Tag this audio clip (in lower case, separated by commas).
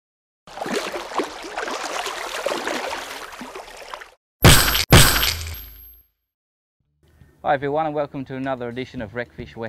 music, speech